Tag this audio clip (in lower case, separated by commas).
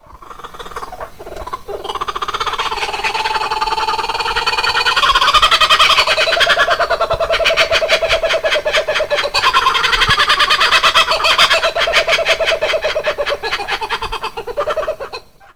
bird call, animal, wild animals, bird